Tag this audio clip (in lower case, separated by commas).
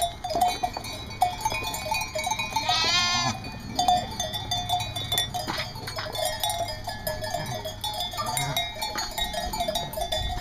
sheep bleating, sheep, bleat